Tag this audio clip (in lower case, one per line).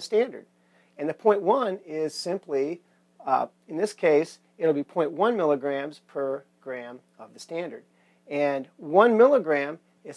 speech